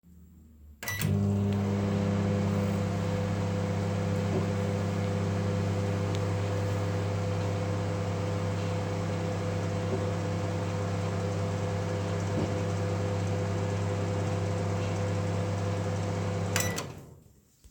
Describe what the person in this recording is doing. I went to the kitchen, then I turned in the microwave. The mircowave was on for a few seconds, then I turned it off.